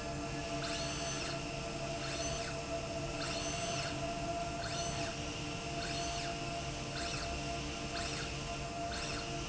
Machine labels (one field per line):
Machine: slide rail